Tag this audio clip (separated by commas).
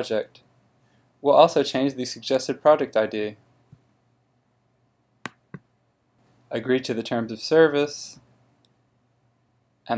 Speech